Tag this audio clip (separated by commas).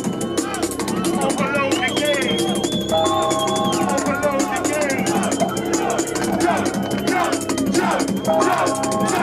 Music